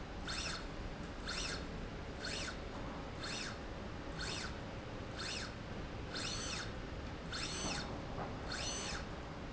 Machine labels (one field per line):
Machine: slide rail